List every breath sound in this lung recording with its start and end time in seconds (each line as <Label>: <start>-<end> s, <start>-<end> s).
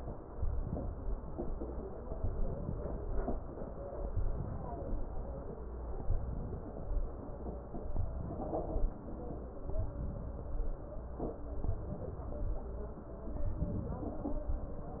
Inhalation: 0.38-1.16 s, 2.31-3.09 s, 4.21-5.00 s, 6.12-6.90 s, 8.17-8.95 s, 9.84-10.62 s, 11.70-12.48 s, 13.67-14.45 s